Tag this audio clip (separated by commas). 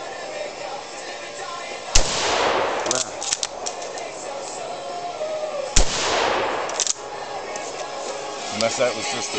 Speech, Music